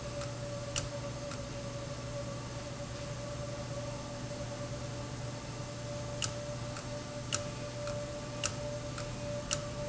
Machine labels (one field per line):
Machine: valve